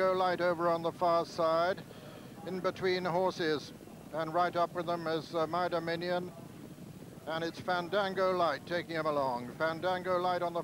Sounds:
Speech

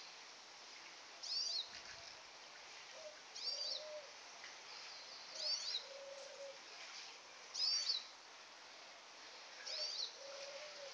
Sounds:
outside, rural or natural, Animal, tweet

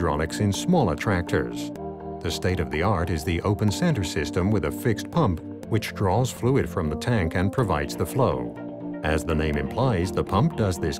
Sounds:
Speech, Music

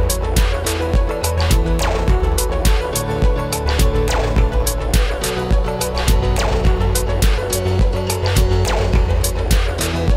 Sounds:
Music

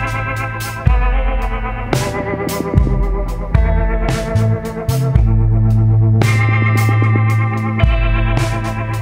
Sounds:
Music

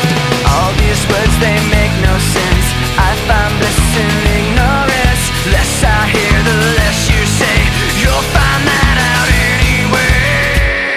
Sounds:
Music

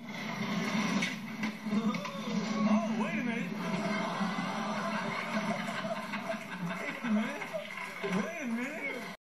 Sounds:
Speech

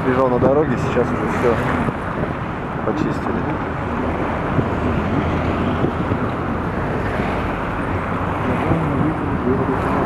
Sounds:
Speech, Vehicle, Car

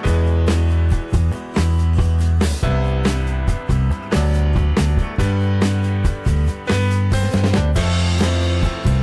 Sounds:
Music

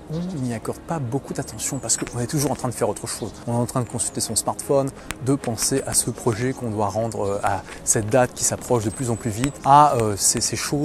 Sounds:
Speech, Music

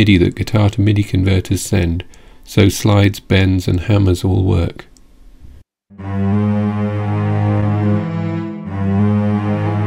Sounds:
Strum, Musical instrument, Guitar, Speech, Plucked string instrument, Music

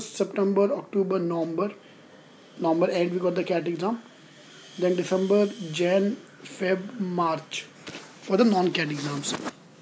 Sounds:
Speech

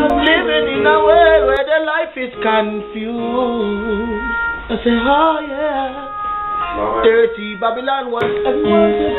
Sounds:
Speech, Independent music, Music

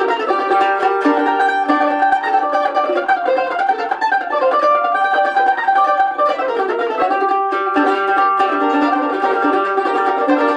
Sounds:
Musical instrument, Music, Plucked string instrument, Mandolin

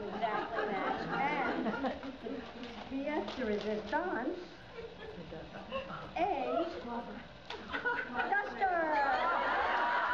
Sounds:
Speech

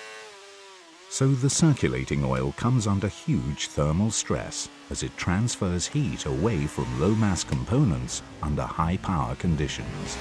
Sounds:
Motorcycle, Vehicle, Engine, Speech, Medium engine (mid frequency), revving

